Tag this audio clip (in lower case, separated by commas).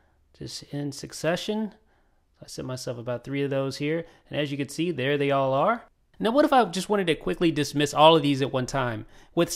inside a small room, speech